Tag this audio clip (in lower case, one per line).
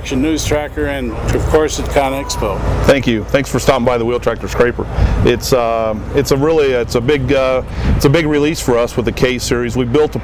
speech